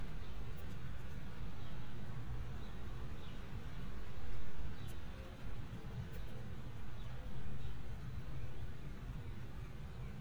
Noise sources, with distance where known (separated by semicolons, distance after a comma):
background noise